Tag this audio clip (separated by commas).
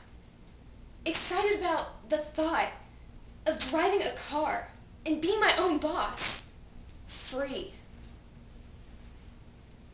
Narration, Speech